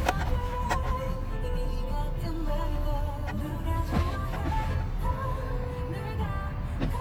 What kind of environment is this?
car